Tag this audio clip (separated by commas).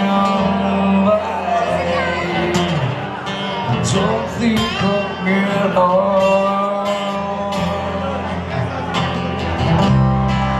Speech, Music